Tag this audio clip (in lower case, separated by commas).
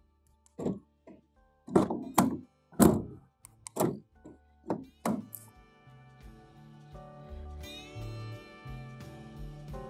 opening or closing car doors